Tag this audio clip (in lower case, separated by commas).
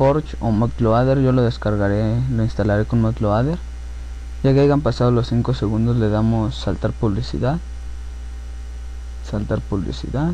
speech